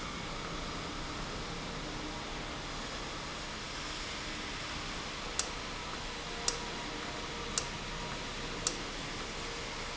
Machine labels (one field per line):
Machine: valve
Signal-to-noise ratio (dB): -6 dB